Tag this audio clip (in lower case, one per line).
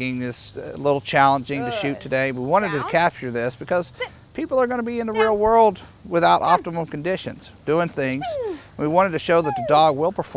speech